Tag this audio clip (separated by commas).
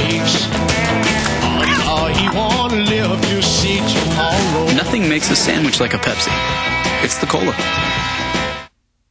Speech, Music